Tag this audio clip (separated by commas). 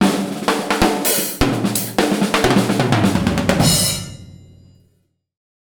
Drum, Music, Percussion, Drum kit, Musical instrument